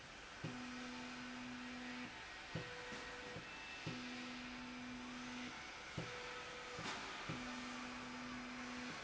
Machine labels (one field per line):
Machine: slide rail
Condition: normal